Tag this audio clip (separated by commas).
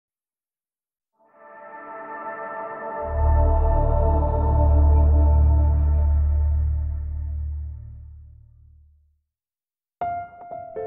Ambient music, Music